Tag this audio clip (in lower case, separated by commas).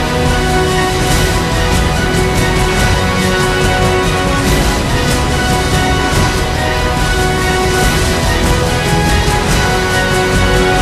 music, theme music